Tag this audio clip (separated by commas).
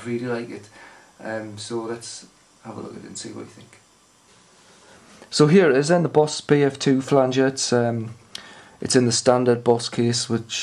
Speech